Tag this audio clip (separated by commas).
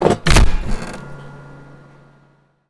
Mechanisms